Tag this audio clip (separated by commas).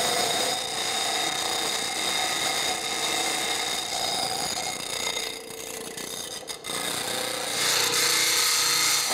Tools